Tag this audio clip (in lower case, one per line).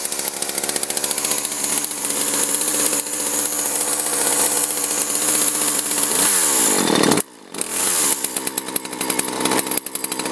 chainsaw
chainsawing trees